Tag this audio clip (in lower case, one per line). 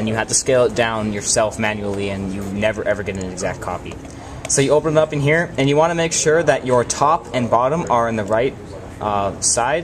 speech